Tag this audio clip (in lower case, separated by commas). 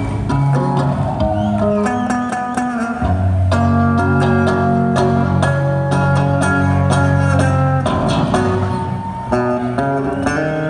music